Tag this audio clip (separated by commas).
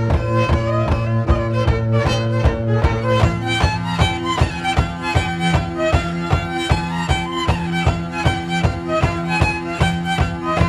fiddle, Music